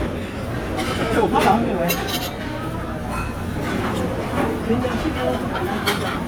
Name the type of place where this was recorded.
crowded indoor space